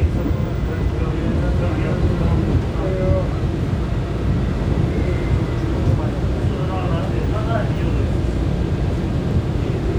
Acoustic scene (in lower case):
subway train